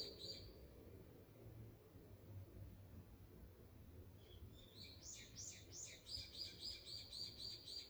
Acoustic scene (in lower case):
park